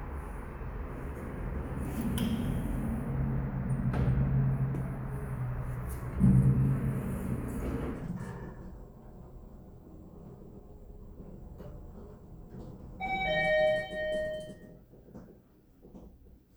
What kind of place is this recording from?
elevator